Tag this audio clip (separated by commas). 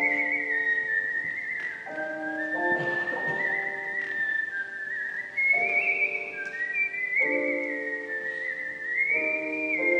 Music